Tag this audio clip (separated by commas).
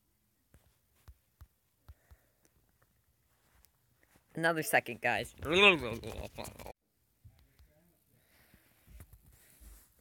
Speech, inside a small room